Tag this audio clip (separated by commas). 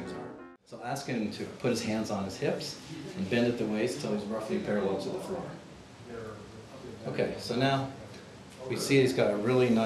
Music, Speech